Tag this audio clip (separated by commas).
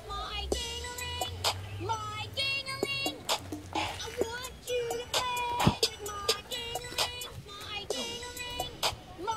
tinkle